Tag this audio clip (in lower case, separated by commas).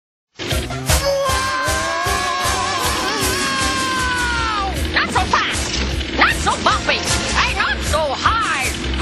speech, music